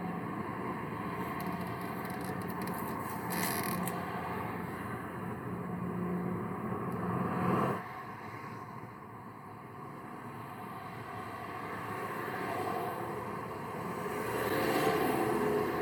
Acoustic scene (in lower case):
street